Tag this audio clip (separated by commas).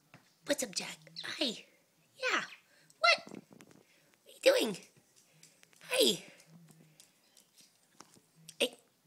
Domestic animals, Speech, Bird